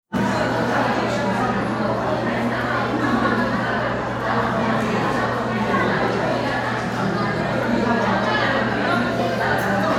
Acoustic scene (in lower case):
crowded indoor space